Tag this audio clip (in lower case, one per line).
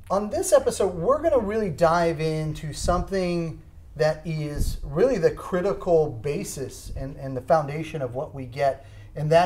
speech